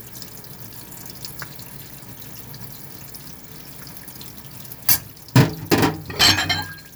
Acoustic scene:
kitchen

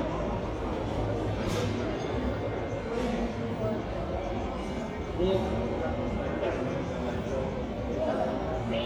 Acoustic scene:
crowded indoor space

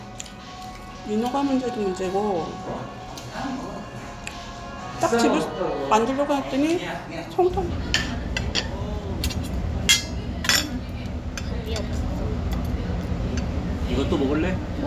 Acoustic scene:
restaurant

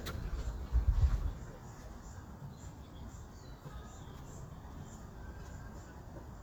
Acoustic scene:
park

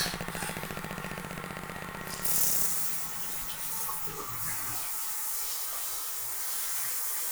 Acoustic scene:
restroom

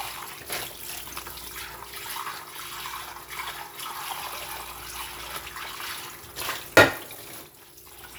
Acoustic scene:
kitchen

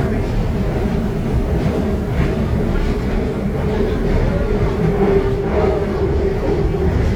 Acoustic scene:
subway train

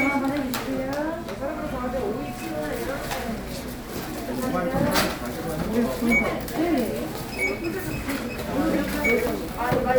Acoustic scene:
crowded indoor space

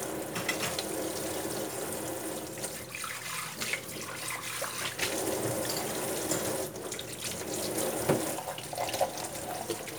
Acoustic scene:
kitchen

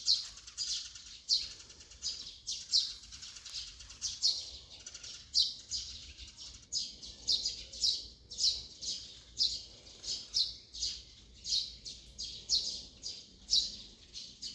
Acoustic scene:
park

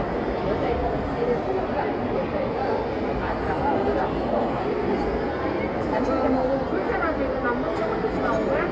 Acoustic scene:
crowded indoor space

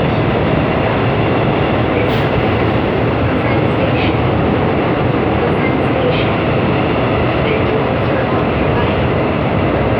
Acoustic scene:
subway train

